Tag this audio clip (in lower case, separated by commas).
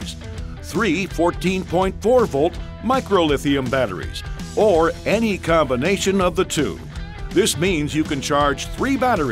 music, speech